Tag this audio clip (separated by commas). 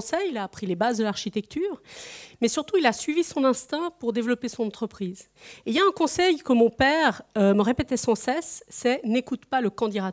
Speech